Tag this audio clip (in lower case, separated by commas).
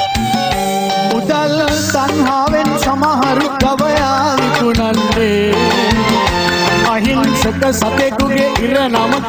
music, music of africa